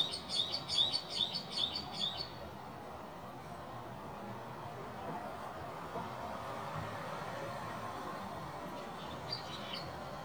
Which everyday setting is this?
residential area